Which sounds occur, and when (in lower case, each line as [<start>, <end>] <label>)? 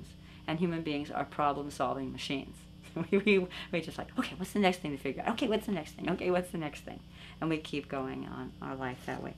[0.00, 0.40] breathing
[0.00, 9.35] mechanisms
[0.42, 2.50] female speech
[2.83, 6.91] female speech
[2.90, 3.41] giggle
[7.08, 7.37] breathing
[7.38, 9.35] female speech
[8.61, 9.16] crinkling